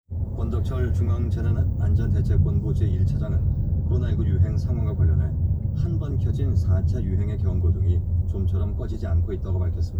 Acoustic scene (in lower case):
car